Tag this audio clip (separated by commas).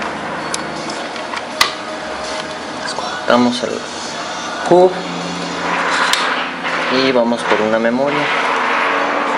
Speech, Music